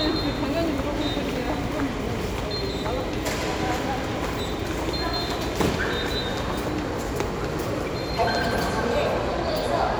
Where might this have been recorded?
in a subway station